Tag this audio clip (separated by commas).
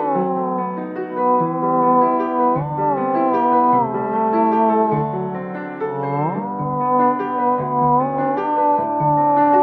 playing theremin